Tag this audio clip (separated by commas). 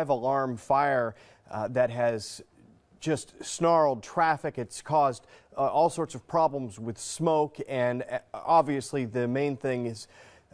Speech